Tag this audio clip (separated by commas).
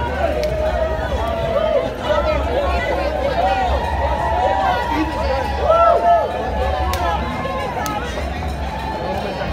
people cheering